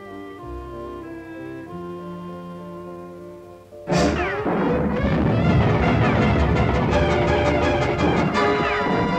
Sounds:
music

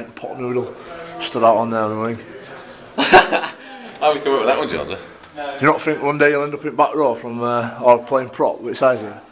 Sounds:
speech

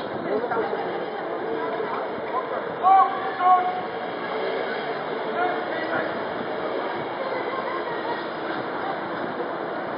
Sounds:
speech

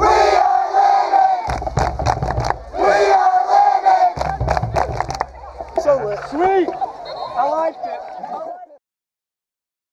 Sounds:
crowd
battle cry

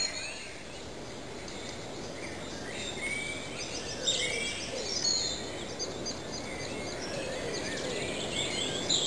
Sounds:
bird vocalization
bird
chirp

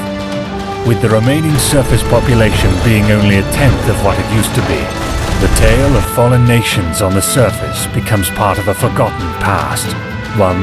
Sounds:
speech
music

